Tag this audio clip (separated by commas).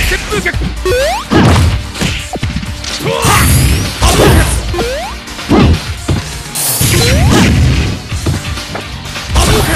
Whack